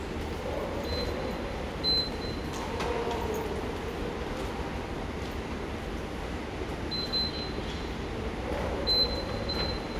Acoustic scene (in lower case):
subway station